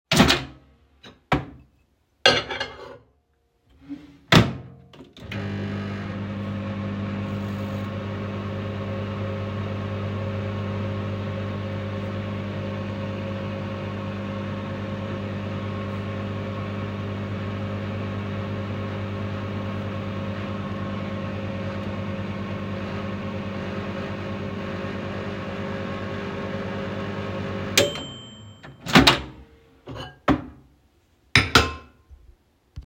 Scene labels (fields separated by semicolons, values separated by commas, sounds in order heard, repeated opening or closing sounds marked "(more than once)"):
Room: kitchen; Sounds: cutlery and dishes, microwave